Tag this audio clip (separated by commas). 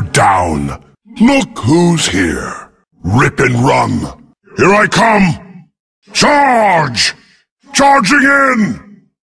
Speech